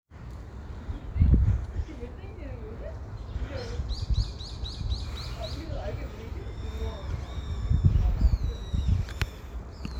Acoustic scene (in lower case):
park